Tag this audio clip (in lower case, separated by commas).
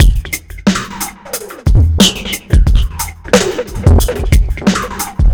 percussion, musical instrument, drum kit, music